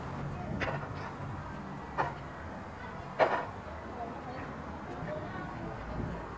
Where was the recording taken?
in a residential area